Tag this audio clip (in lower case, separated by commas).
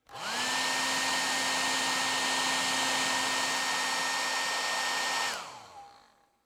home sounds